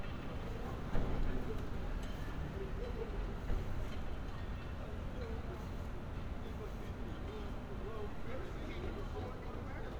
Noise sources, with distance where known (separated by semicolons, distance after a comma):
person or small group talking